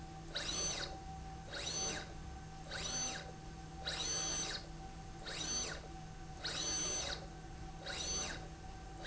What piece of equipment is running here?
slide rail